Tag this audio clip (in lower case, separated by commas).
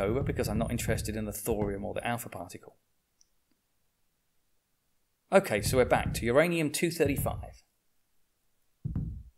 speech